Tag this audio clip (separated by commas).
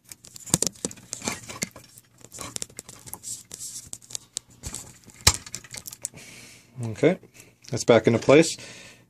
Speech